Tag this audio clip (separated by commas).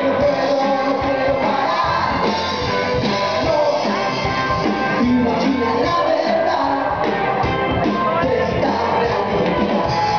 inside a large room or hall, Music, Crowd